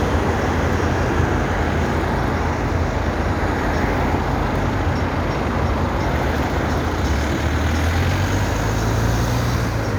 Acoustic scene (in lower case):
street